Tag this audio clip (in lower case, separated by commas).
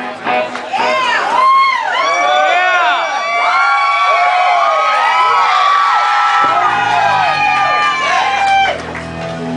music